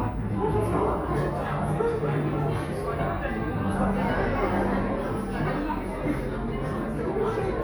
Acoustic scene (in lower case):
cafe